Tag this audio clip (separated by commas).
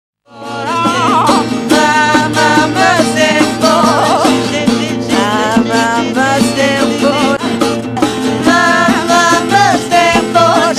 Music, Orchestra, Musical instrument